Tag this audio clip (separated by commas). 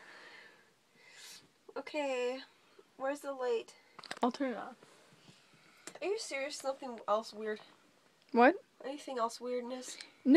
Speech